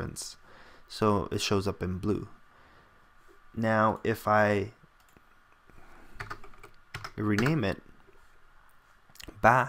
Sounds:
Speech, Computer keyboard

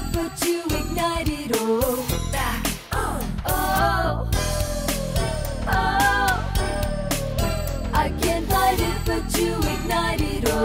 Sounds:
Music

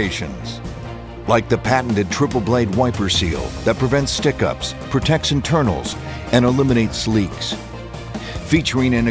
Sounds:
Speech, Music

